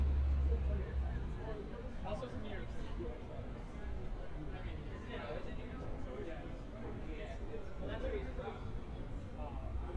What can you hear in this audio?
person or small group talking